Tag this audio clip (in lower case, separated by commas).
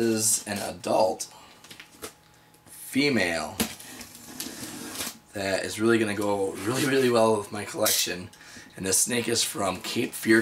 inside a small room, speech